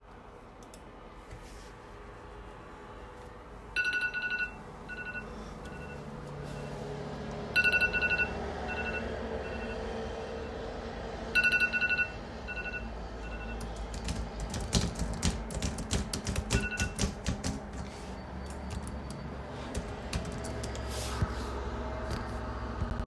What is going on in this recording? It started with a phone ringing, followed by typing on the keyboard. This all while the window was open an street noise was coming into the room.